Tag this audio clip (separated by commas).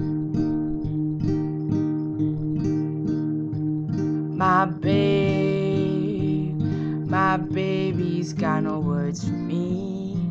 Music